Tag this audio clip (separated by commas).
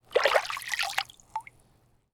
Liquid, Splash